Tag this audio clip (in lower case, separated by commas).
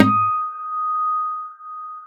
musical instrument, guitar, plucked string instrument, acoustic guitar, music